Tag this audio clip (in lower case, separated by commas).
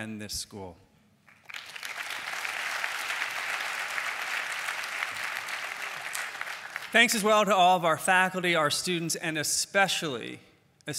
monologue, man speaking, speech